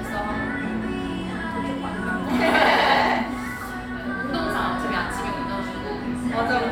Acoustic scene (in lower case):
cafe